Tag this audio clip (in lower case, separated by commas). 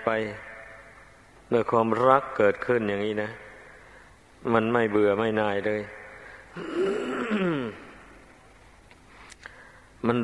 speech